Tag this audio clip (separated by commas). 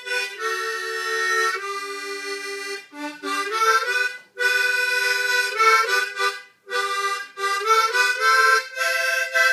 Music